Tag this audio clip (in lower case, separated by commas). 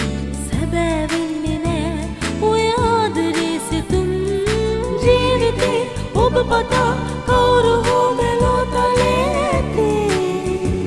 singing, music